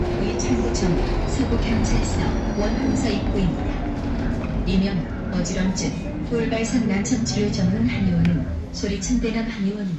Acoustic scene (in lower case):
bus